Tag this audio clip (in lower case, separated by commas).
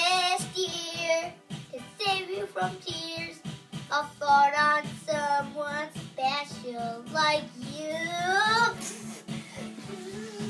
inside a large room or hall, child singing, music